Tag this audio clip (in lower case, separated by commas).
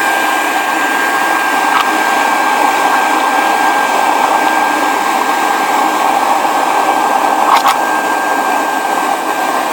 blender